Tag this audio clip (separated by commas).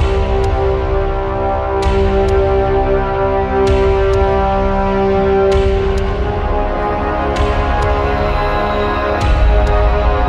Music